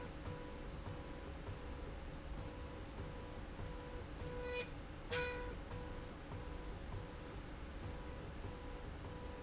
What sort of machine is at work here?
slide rail